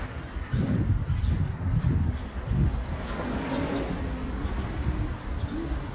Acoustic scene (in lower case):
residential area